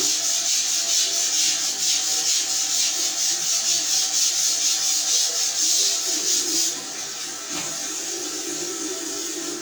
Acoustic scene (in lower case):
restroom